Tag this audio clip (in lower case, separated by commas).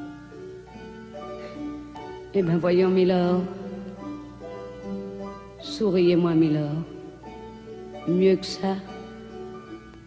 piano, keyboard (musical)